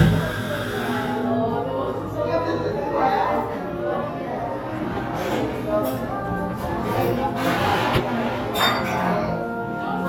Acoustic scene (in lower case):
cafe